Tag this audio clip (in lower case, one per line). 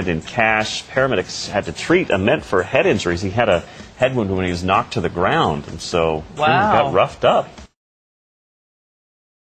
speech
music